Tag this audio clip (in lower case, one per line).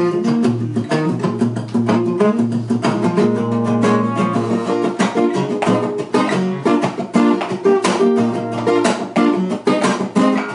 guitar
music
musical instrument
plucked string instrument